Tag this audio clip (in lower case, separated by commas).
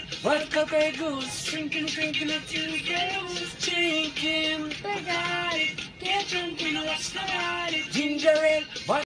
music, child singing, male singing